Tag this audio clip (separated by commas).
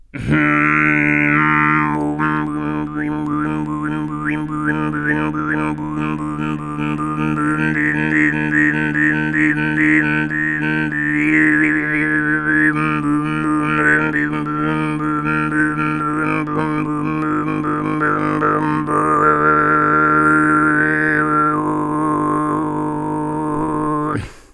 Singing, Human voice